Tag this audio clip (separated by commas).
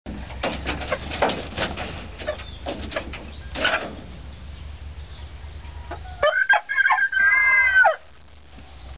Crowing, Chicken, Animal